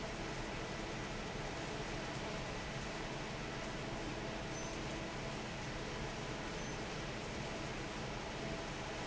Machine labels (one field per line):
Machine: fan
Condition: normal